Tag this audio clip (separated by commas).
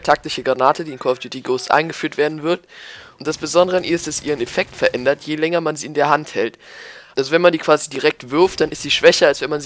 Speech